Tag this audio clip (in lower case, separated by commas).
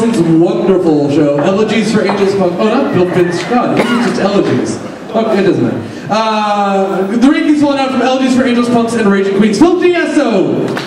speech